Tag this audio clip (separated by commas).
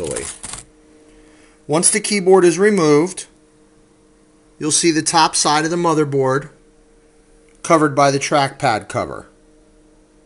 inside a small room, Speech